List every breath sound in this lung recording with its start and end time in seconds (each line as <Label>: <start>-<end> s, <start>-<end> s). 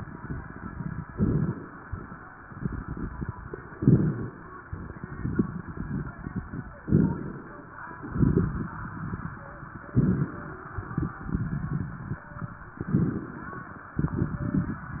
Inhalation: 1.08-1.77 s, 3.79-4.38 s, 6.83-7.61 s, 9.96-10.74 s, 12.82-13.77 s
Crackles: 0.00-1.01 s, 1.08-1.77 s, 2.47-3.72 s, 3.79-4.38 s, 4.71-6.78 s, 6.83-7.61 s, 8.01-9.85 s, 9.96-10.74 s, 10.78-12.71 s, 12.82-13.77 s, 14.06-15.00 s